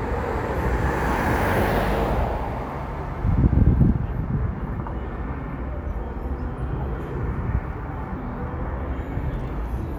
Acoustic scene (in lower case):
street